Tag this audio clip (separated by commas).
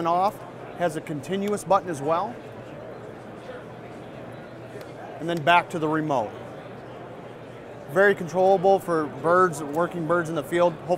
Speech